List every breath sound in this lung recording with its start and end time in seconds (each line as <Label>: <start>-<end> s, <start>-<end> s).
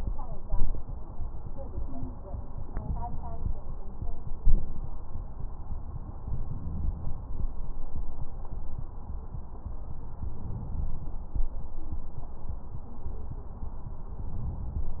Inhalation: 2.63-3.45 s, 6.32-7.13 s, 10.24-11.18 s, 14.18-15.00 s
Exhalation: 4.42-4.82 s